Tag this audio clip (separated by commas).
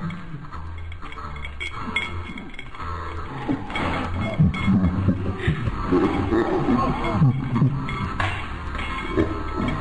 Animal, Music